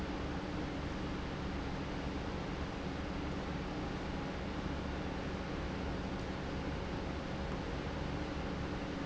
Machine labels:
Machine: pump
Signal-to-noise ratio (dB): -6 dB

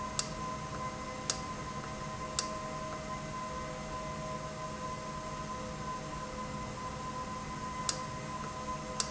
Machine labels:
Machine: valve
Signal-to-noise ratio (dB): -6 dB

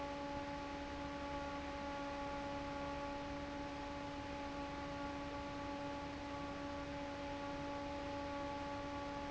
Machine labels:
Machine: fan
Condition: normal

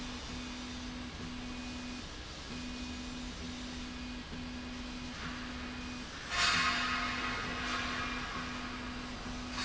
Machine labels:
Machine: slide rail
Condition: normal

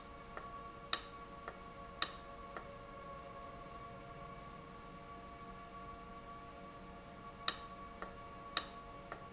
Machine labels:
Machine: valve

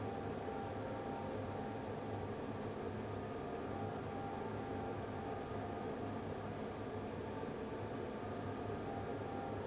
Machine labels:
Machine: fan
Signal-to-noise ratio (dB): 6 dB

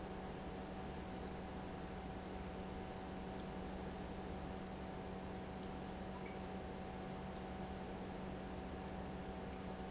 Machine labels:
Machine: pump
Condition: normal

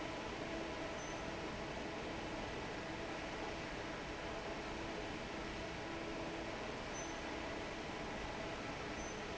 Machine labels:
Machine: fan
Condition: normal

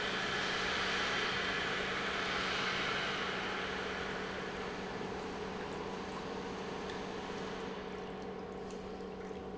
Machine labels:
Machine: pump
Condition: normal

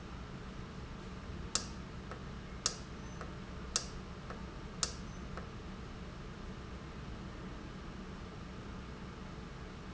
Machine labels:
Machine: valve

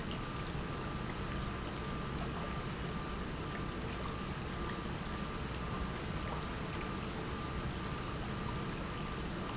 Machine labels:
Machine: pump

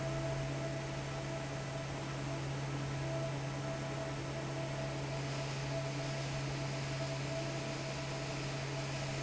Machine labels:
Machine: fan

